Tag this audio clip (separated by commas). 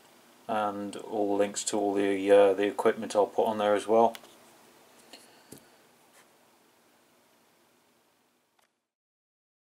inside a small room, Speech